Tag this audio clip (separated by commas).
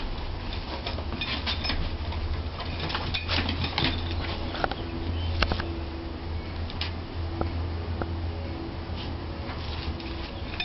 Music